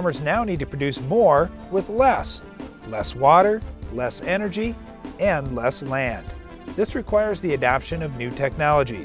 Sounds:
music, speech

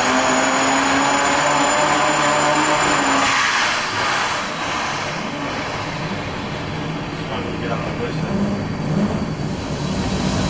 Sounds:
inside a large room or hall, engine, speech

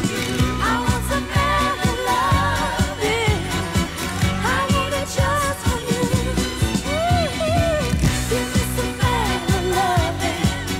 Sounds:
funk, singing, music

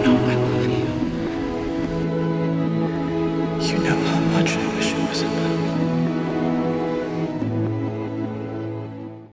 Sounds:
music, speech

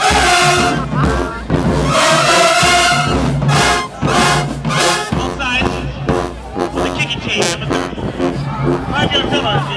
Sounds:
music, speech

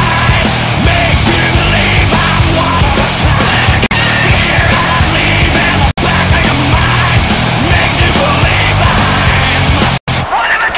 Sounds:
music

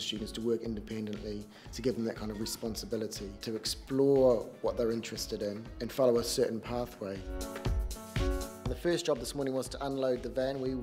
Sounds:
music, speech

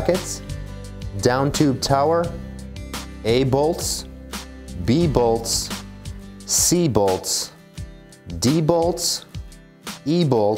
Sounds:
music, speech

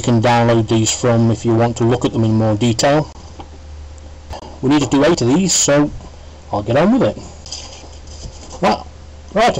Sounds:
speech

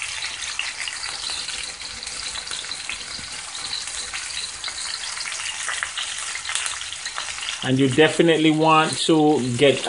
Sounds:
frying (food)

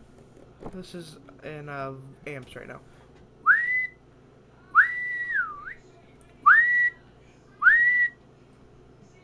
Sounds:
whistling

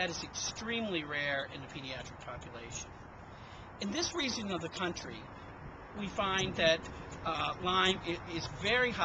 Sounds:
speech

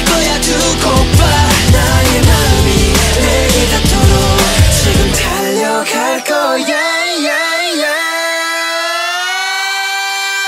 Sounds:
pop music, music, music of asia, singing

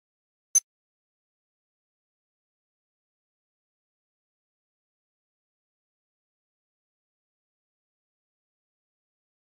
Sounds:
bleep

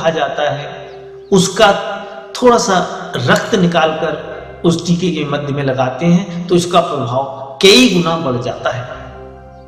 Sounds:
speech, music

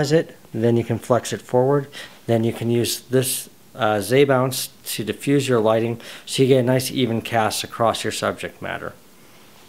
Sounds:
speech

